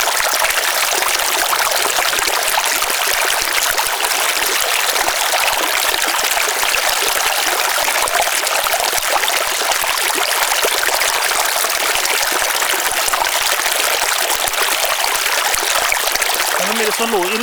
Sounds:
Stream, Water

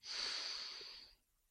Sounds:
Respiratory sounds

